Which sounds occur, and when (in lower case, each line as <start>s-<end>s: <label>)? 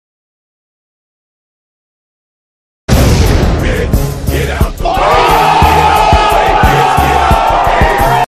2.8s-3.6s: explosion
3.6s-8.2s: music
3.6s-8.2s: choir
4.7s-8.2s: shout